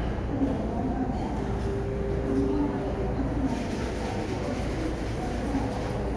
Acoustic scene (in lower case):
crowded indoor space